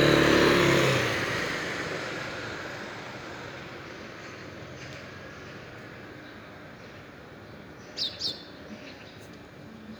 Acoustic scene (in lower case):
residential area